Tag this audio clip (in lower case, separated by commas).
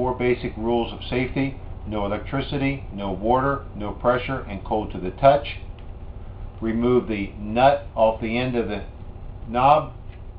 speech